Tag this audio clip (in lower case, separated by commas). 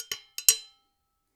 home sounds, dishes, pots and pans